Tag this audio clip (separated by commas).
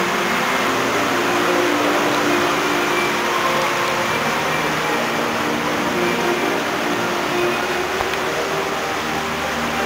Music